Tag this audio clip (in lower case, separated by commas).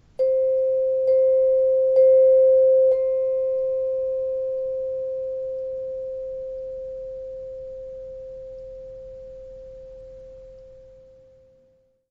musical instrument, percussion, music, mallet percussion